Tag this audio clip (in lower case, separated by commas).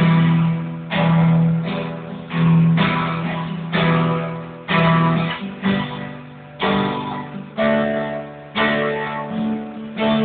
plucked string instrument, music, guitar, musical instrument, electric guitar